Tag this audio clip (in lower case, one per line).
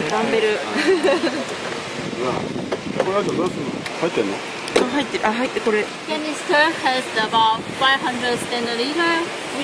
speech
outside, urban or man-made